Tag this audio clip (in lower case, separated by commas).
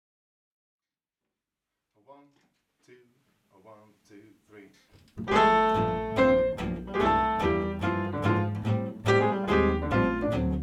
speech, guitar, music, musical instrument, jazz, piano, double bass, bowed string instrument